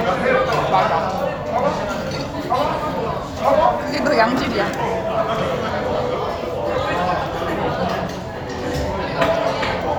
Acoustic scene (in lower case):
crowded indoor space